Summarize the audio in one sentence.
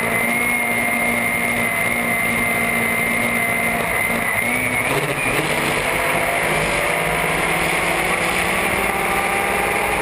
Small whining engine